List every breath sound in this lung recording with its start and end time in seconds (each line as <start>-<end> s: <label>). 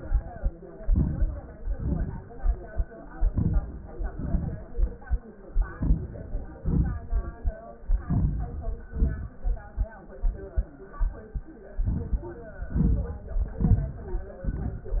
0.80-1.57 s: inhalation
1.57-2.72 s: exhalation
3.28-3.94 s: inhalation
3.95-4.98 s: exhalation
5.59-6.62 s: inhalation
6.62-7.65 s: exhalation
7.96-8.89 s: inhalation
8.88-9.93 s: exhalation
11.70-12.56 s: inhalation
12.55-13.53 s: exhalation
13.52-14.45 s: inhalation
14.45-15.00 s: exhalation